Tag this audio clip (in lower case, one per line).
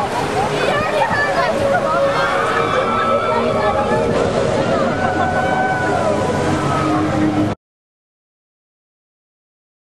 outside, urban or man-made
speech
music